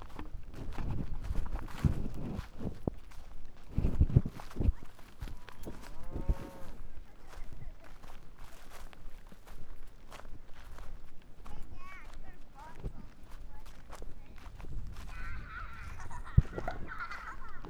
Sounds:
livestock, animal

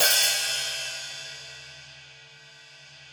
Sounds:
cymbal, hi-hat, percussion, music, musical instrument

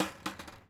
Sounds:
skateboard, vehicle

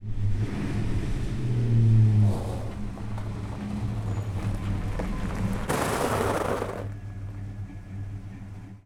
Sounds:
truck, motor vehicle (road), vehicle

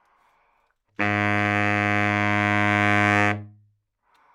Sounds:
wind instrument, music, musical instrument

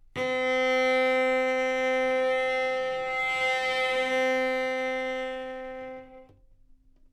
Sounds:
music, musical instrument, bowed string instrument

